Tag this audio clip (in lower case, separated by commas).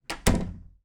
door, slam, domestic sounds